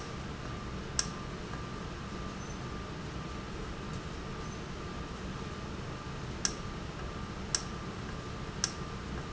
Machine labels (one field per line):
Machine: valve